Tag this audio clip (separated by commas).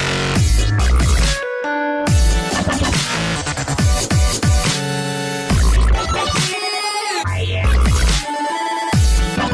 Dubstep, Music